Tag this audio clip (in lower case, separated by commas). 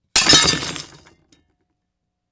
shatter, glass